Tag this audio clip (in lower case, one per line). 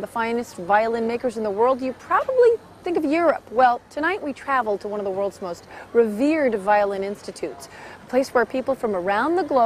speech